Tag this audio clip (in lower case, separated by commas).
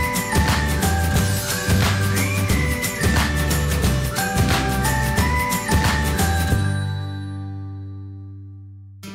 music, speech